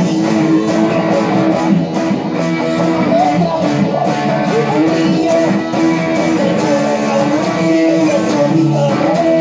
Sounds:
Music, Musical instrument, Electric guitar, Guitar

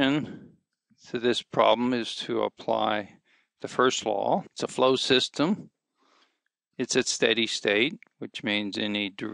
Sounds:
Speech

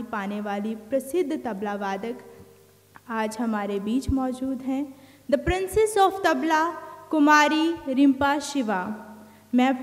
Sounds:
Speech

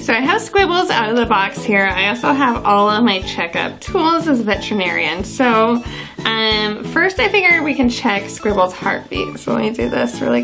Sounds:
Speech, Music

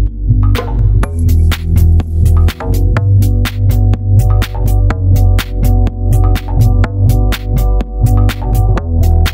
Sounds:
Music

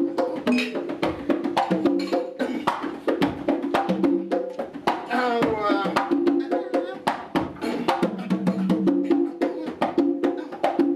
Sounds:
playing congas

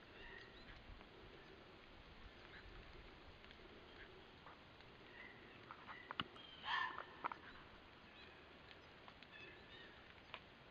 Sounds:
fox barking

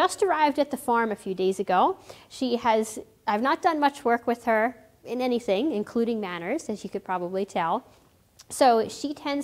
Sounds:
Speech

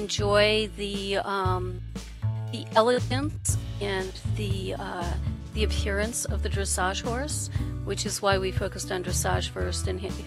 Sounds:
Speech, Music

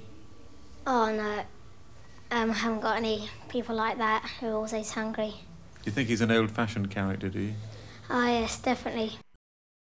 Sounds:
Speech

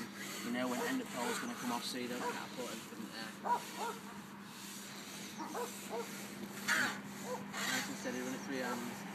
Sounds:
Animal, outside, rural or natural, Speech

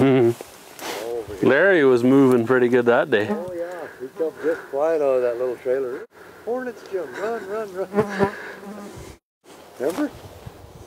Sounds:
Speech

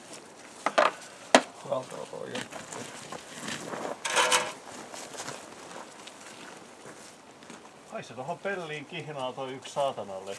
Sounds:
Speech

